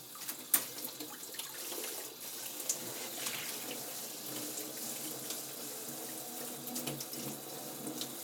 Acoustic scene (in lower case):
kitchen